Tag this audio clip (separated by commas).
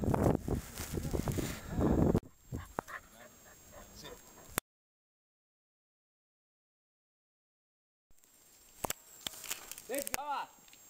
Speech